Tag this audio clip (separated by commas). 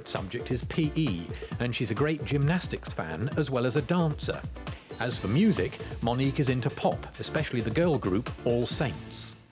Speech, Music